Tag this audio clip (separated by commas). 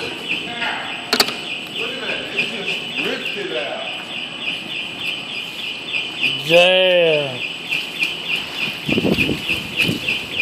Speech